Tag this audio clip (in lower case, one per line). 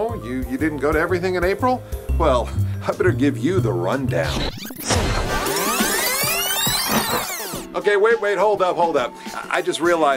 music
speech